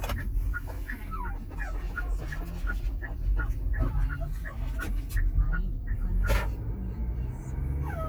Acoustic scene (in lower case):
car